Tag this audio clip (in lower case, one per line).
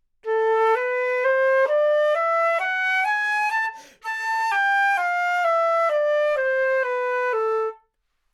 musical instrument
music
wind instrument